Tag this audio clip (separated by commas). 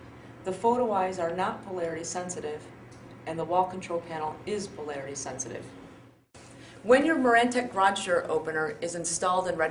Speech